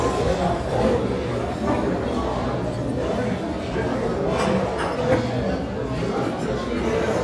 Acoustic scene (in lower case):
restaurant